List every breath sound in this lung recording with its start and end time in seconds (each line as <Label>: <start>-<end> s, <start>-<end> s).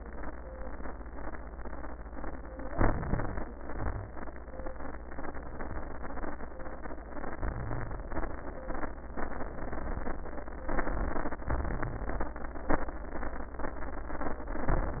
Inhalation: 2.75-3.42 s, 7.40-8.01 s, 10.72-11.38 s
Exhalation: 3.54-4.09 s, 8.09-8.56 s, 11.54-12.34 s
Wheeze: 7.40-8.00 s